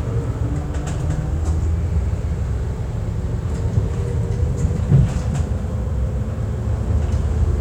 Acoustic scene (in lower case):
bus